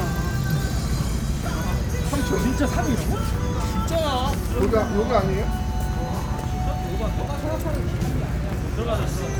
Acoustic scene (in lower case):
street